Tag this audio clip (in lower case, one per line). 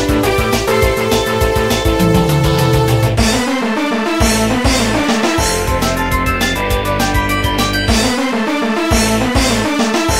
music